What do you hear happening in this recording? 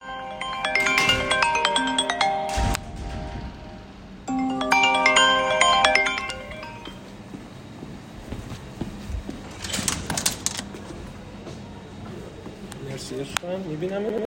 I was in the kitchen handling dishes while opening and closing the microwave. A bell-like notification sound is also audible.